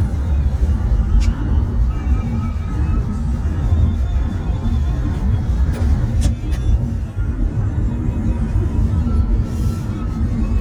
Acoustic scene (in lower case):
car